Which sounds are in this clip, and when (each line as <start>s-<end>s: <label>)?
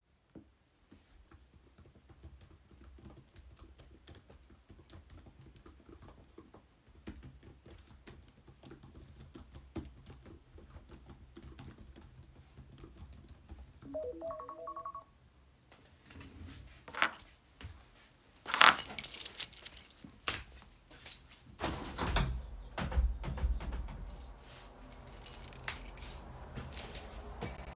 2.6s-14.1s: keyboard typing
13.8s-15.2s: phone ringing
17.9s-21.2s: keys
22.0s-24.4s: window
24.7s-27.1s: keys